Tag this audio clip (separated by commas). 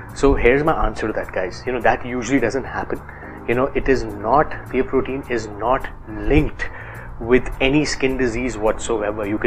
Speech, Music